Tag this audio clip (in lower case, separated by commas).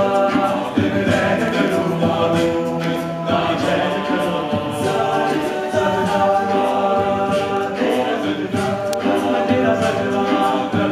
gospel music, music, vocal music, singing, choir